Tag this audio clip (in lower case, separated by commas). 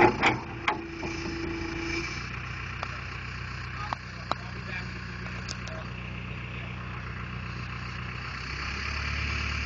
speech